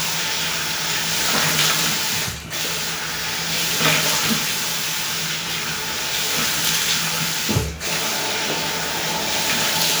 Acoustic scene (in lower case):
restroom